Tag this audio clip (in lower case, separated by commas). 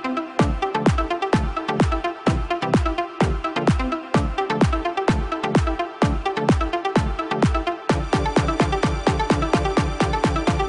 music